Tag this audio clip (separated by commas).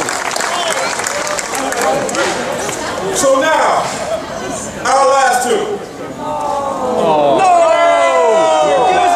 Speech